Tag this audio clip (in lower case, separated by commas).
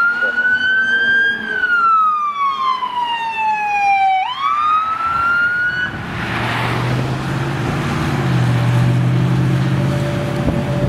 fire truck siren